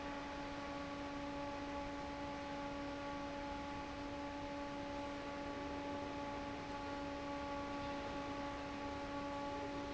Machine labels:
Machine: fan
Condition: normal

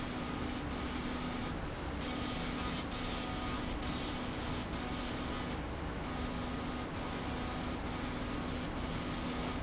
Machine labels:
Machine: slide rail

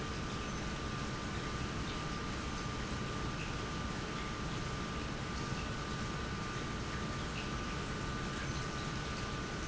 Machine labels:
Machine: pump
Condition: normal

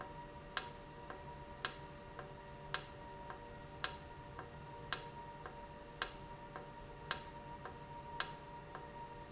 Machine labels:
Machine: valve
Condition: normal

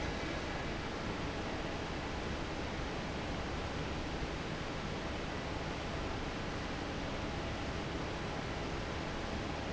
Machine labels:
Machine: fan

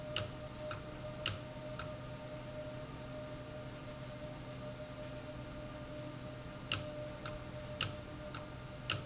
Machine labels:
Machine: valve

